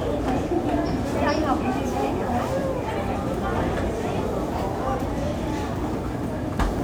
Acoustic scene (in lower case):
crowded indoor space